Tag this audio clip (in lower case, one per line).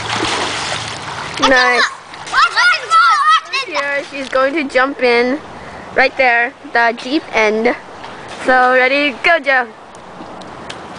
speech